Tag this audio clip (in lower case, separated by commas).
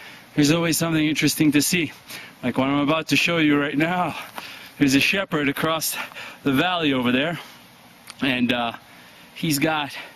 speech